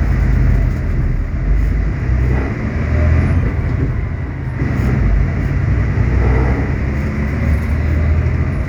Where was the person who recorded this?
on a bus